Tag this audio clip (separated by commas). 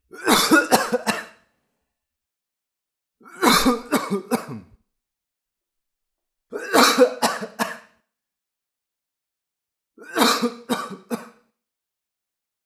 Cough, Respiratory sounds